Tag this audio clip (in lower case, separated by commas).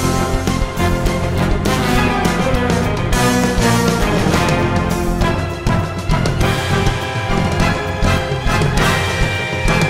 music